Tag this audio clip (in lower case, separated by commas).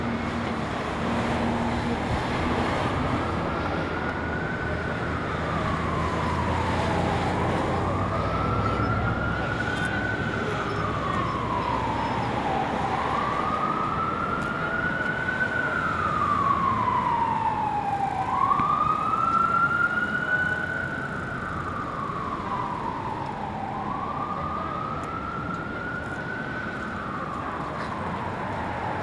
motor vehicle (road), vehicle, roadway noise